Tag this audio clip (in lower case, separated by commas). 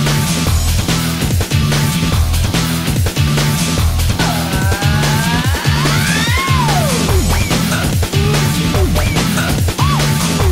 music